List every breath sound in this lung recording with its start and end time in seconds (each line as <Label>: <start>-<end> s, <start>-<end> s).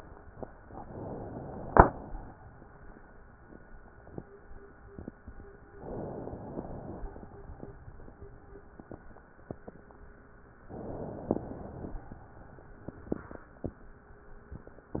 Inhalation: 0.72-1.77 s, 5.81-6.57 s, 10.70-11.37 s
Exhalation: 1.77-2.73 s, 6.57-7.34 s, 11.37-12.18 s